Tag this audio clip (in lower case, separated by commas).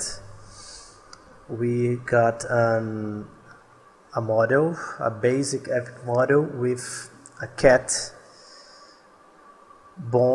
speech